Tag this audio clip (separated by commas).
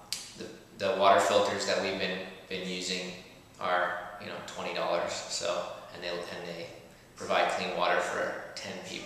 Speech